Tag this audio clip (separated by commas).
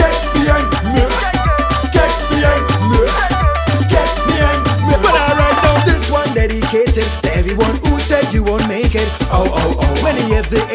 Dance music, Music